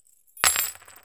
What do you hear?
metal object falling